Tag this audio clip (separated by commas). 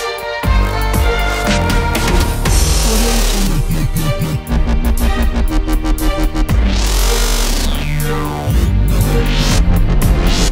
Dubstep, Electronic music, Musical instrument, Music